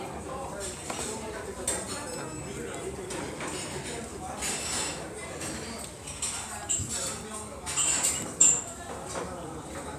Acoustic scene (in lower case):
restaurant